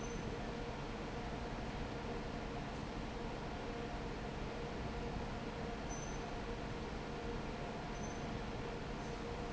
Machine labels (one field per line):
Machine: fan